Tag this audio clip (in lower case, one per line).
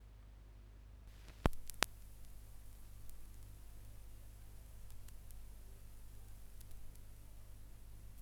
crackle